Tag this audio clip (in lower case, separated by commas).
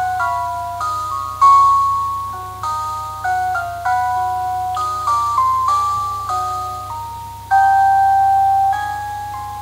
glockenspiel, mallet percussion, xylophone